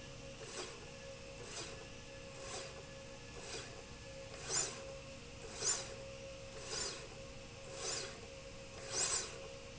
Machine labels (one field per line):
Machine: slide rail